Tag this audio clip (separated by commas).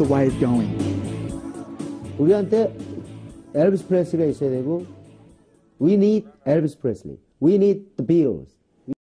Speech, Music